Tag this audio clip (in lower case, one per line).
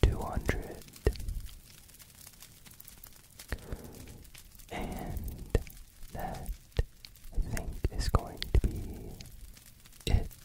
fire crackling